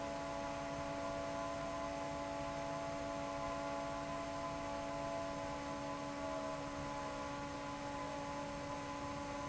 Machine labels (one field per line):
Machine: fan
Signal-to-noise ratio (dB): 0 dB